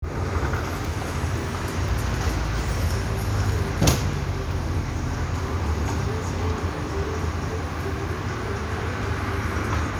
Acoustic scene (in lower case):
street